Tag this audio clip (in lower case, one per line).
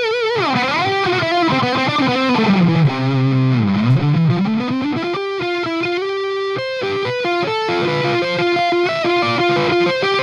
music